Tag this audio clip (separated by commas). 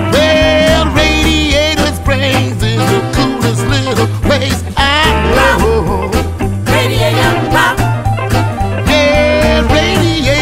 Music